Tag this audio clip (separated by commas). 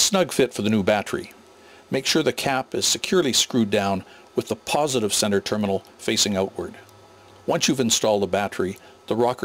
Speech